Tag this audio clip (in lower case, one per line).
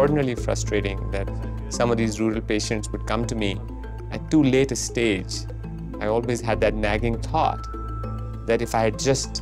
music
speech